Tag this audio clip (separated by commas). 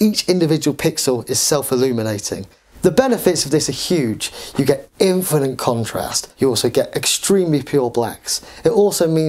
Speech